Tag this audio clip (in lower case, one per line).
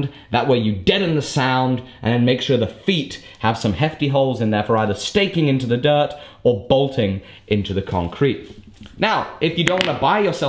striking pool